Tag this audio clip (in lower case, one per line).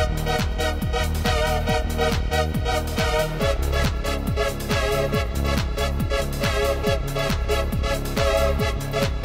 music